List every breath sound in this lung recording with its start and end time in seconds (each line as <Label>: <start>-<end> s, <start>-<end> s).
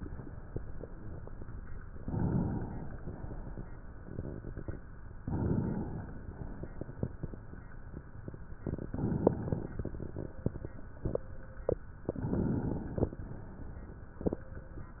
Inhalation: 1.85-3.03 s, 5.18-6.25 s, 8.55-9.89 s, 12.02-13.15 s
Exhalation: 3.02-4.80 s, 6.24-7.76 s, 9.90-11.27 s